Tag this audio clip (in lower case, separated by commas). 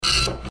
mechanisms, printer